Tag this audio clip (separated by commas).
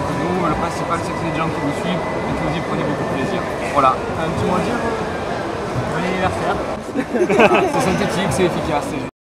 Speech